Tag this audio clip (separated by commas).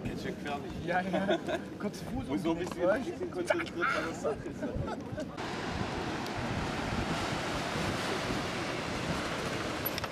Bicycle, outside, rural or natural, Vehicle, Speech